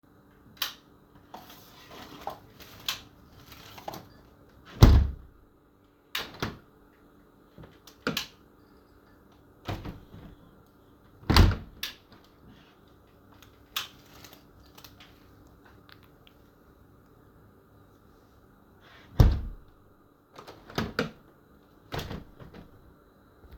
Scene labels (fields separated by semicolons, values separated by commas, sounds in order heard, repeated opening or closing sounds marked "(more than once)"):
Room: bedroom; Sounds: light switch, window (more than once)